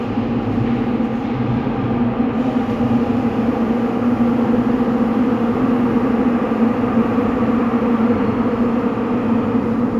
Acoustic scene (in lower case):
subway station